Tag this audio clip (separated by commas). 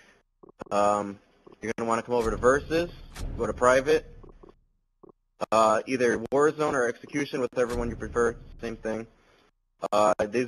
Speech